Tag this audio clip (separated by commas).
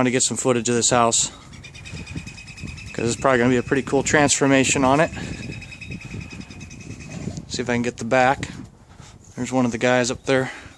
Speech, outside, rural or natural